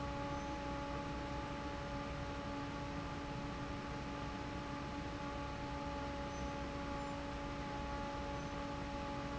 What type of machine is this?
fan